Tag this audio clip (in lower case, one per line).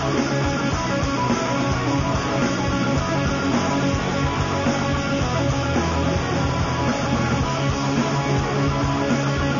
music